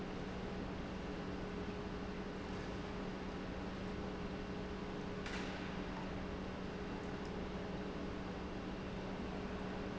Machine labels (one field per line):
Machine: pump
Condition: normal